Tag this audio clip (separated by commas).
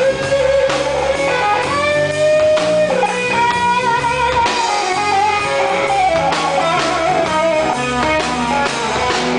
Music, Musical instrument, Strum, Electric guitar, Plucked string instrument, Guitar